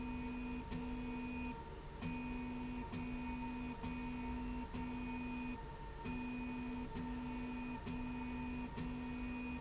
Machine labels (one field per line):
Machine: slide rail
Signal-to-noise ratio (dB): 6 dB